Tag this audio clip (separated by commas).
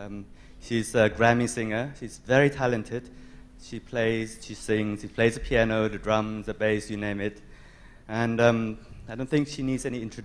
Speech